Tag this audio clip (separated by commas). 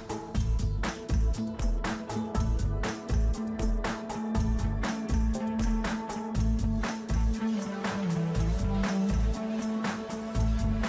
Music